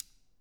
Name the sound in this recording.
switch being turned on